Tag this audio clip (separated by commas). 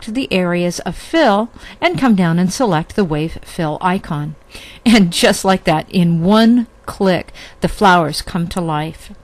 Speech